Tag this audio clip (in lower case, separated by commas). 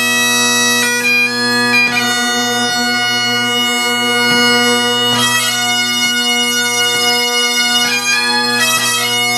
music, playing bagpipes, bagpipes